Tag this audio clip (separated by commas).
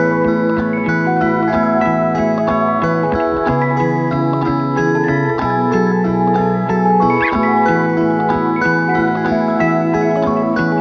Glockenspiel, Marimba, Mallet percussion